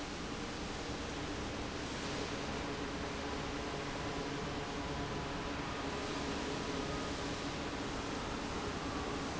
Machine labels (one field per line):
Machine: fan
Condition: abnormal